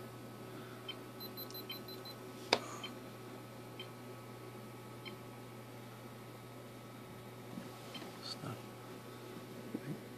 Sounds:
speech

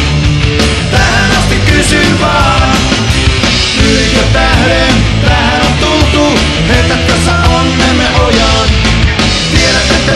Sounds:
punk rock, music

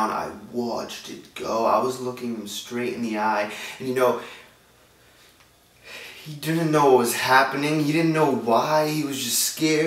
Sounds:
monologue, speech, man speaking

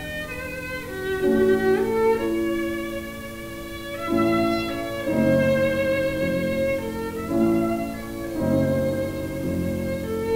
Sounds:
music, fiddle, musical instrument

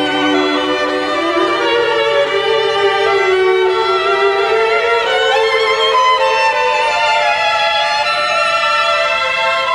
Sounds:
musical instrument, violin, music

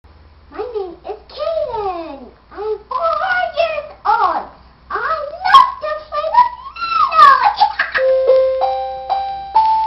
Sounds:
piano, inside a small room, musical instrument, music, keyboard (musical), speech

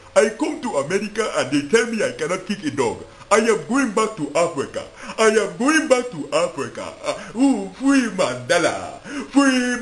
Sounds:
speech

